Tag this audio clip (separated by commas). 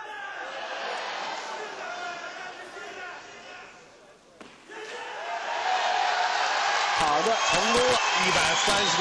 Speech